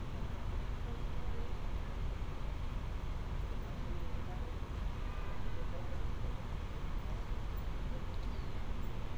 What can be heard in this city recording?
car horn, unidentified human voice